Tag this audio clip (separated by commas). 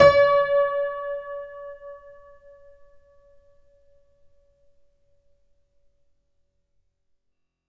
Music, Piano, Musical instrument, Keyboard (musical)